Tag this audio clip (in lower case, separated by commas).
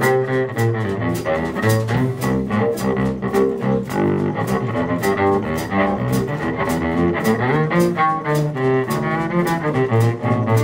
musical instrument, music, cello, double bass, bowed string instrument